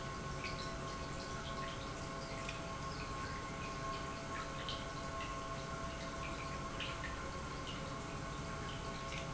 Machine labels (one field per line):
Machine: pump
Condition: normal